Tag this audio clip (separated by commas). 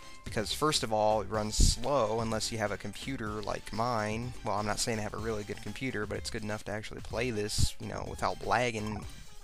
Video game music, Music, Speech